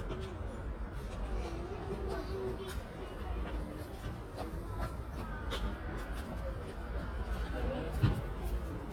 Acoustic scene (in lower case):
residential area